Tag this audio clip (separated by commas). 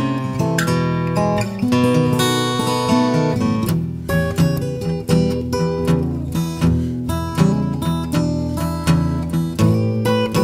Music